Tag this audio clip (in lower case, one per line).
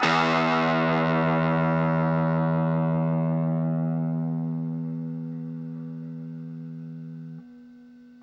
plucked string instrument
guitar
musical instrument
music